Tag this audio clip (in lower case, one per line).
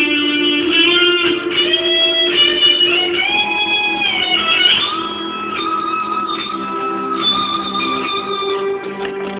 music